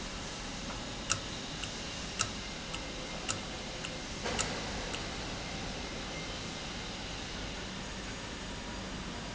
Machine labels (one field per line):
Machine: valve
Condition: normal